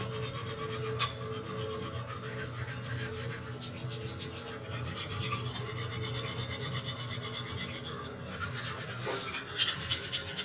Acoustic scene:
restroom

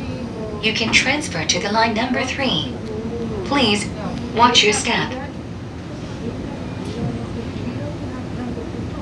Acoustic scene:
subway train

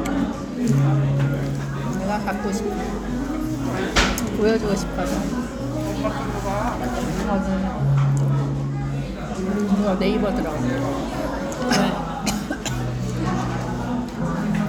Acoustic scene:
crowded indoor space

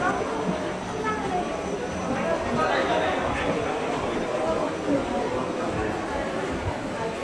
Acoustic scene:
subway station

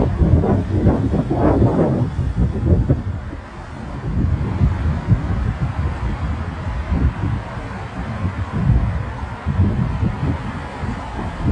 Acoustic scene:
street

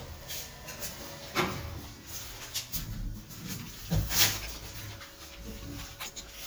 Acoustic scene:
elevator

